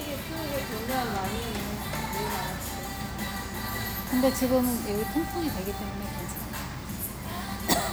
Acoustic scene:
restaurant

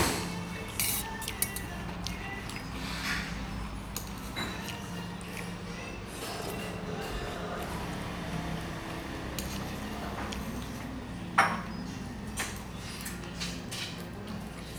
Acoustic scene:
restaurant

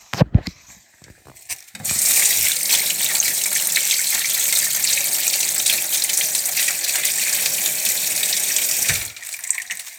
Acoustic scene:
kitchen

